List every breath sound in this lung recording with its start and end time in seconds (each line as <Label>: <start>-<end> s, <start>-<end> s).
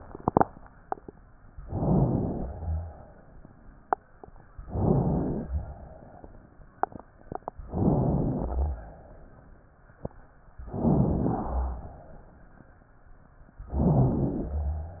Inhalation: 1.62-2.42 s, 4.63-5.49 s, 7.71-8.38 s, 10.67-11.27 s, 13.69-14.59 s
Exhalation: 2.44-3.84 s, 5.49-6.67 s, 8.38-9.85 s, 11.27-12.59 s